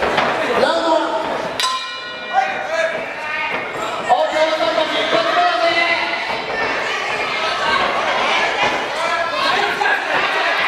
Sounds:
Speech

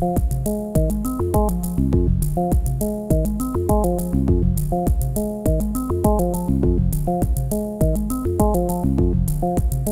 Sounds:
Music

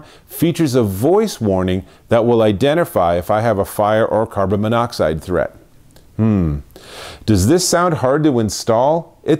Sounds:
Speech

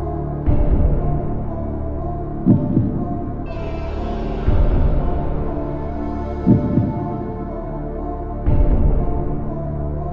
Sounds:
Scary music, Music

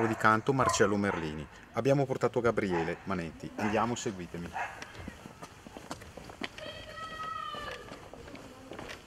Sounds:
Speech

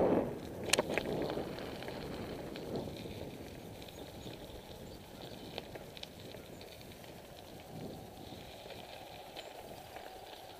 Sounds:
Bicycle

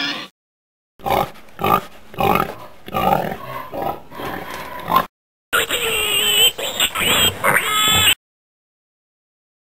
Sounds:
pig oinking, Oink

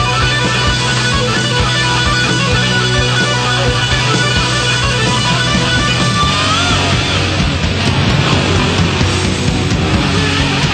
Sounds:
Music

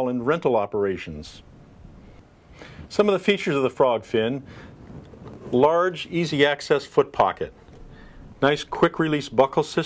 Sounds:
Speech

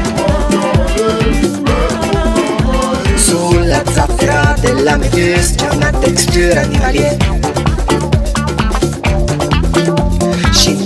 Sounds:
Afrobeat, Music

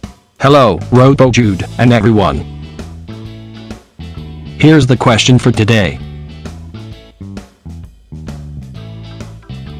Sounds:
Music, Speech

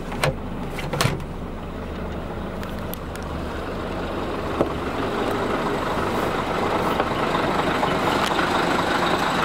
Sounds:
Vehicle, Motor vehicle (road), Truck

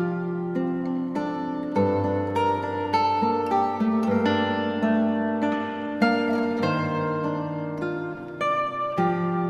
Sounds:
Musical instrument, Music, Guitar

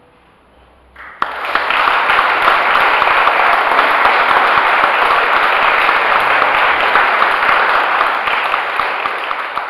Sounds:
singing choir

